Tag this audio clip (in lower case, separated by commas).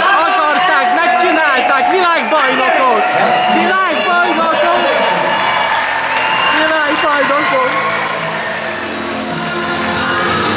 crowd, music, speech